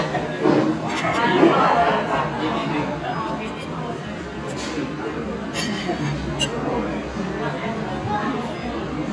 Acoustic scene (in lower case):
restaurant